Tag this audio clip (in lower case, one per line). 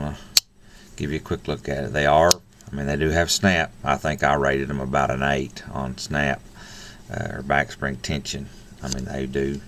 speech